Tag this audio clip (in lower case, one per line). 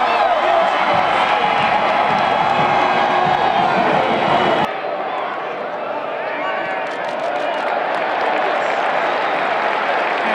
speech